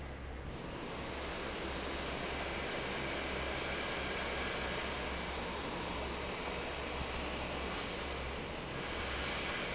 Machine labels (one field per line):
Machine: fan